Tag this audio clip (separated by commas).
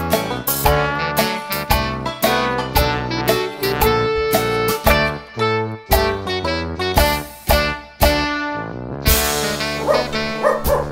Yip, Music